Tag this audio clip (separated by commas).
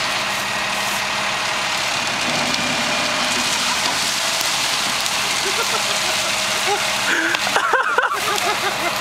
Vehicle